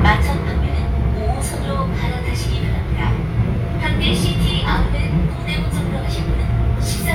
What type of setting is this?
subway train